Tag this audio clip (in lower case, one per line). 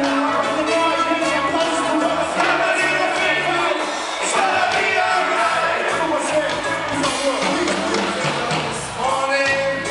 speech
music